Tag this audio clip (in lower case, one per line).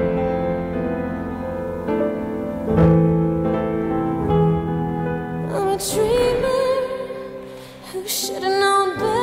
piano
music